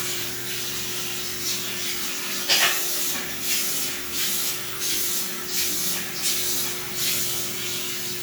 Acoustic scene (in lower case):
restroom